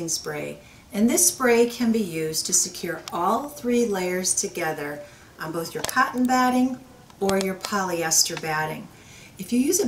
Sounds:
speech

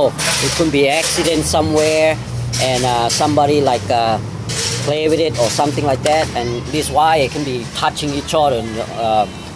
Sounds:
speech

